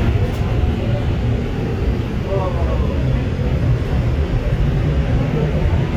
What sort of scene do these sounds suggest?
subway train